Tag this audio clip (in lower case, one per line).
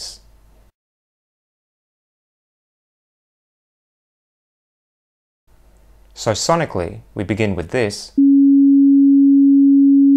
speech